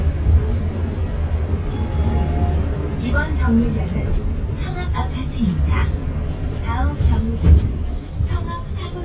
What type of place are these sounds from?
bus